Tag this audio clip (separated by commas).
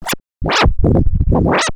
Scratching (performance technique), Music, Musical instrument